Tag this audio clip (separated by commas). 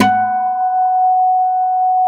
Guitar, Music, Musical instrument, Acoustic guitar, Plucked string instrument